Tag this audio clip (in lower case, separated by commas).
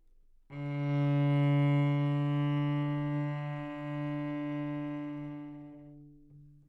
bowed string instrument, musical instrument, music